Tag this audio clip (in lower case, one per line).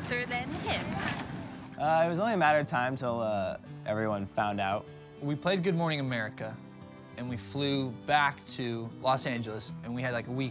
speech
music